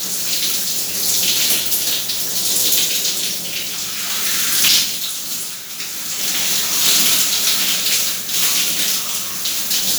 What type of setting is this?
restroom